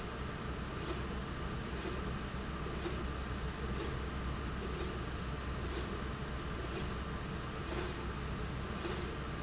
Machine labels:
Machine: slide rail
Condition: normal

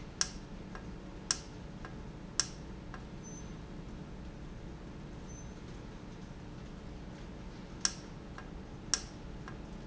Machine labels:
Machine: valve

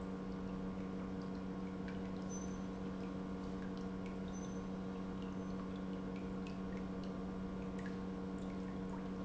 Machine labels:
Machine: pump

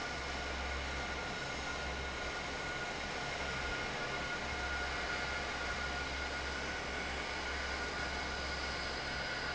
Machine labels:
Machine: fan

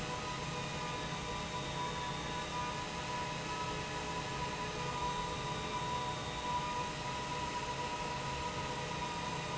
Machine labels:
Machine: pump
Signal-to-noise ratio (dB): -6 dB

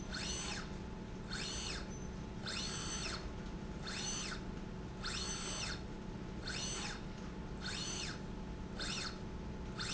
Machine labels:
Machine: slide rail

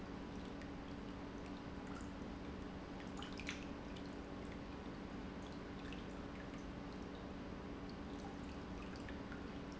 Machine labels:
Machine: pump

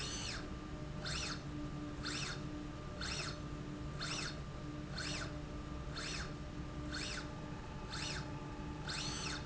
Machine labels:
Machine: slide rail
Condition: normal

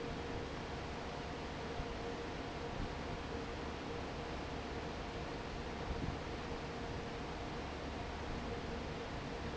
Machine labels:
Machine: fan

